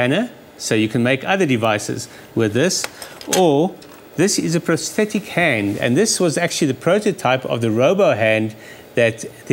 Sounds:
Speech

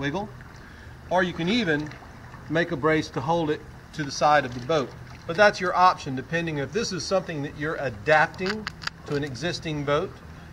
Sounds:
Speech

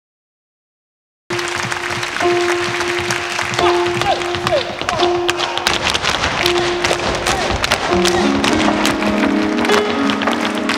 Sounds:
tap dancing

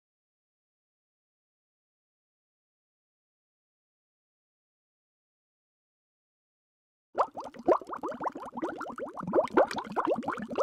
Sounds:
Silence

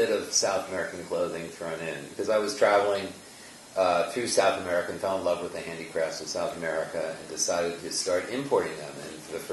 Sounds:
Speech

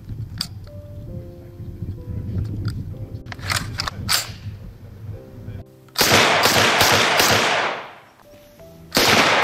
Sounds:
machine gun shooting

